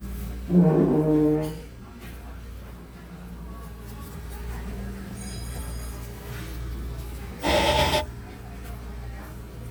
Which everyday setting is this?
cafe